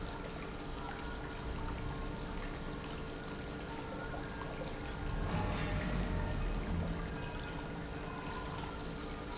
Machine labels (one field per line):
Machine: pump